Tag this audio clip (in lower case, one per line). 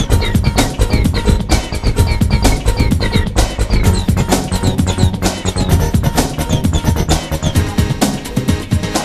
music
independent music
soundtrack music
background music